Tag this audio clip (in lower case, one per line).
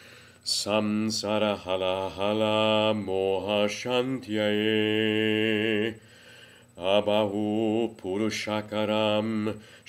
mantra